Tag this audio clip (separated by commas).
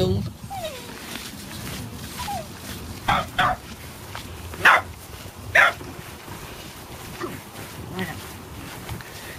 Dog, Bow-wow, Bark